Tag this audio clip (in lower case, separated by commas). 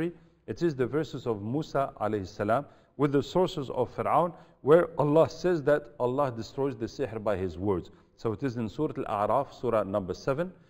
speech